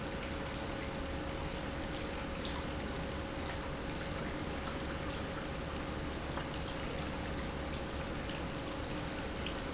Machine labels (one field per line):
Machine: pump